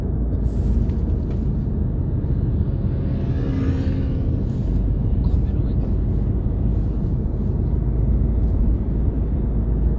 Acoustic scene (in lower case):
car